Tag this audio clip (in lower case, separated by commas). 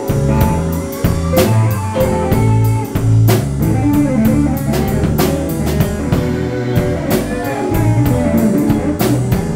strum, music, musical instrument, plucked string instrument, guitar, electric guitar